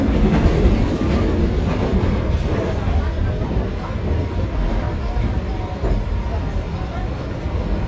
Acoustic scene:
subway train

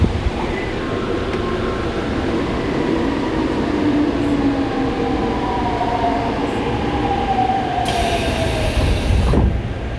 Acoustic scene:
subway station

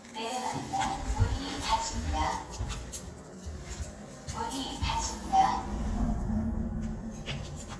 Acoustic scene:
elevator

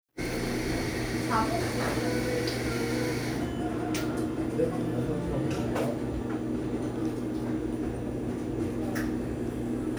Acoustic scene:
cafe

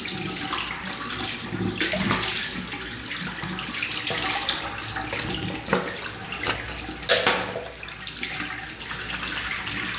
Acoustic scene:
restroom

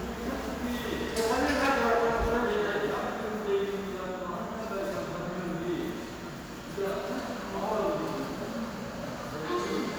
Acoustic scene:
subway station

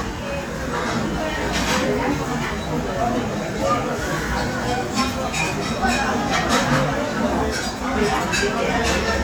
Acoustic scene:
restaurant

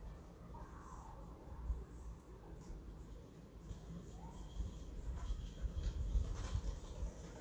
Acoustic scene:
residential area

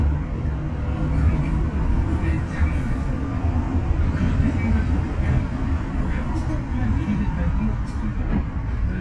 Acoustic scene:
bus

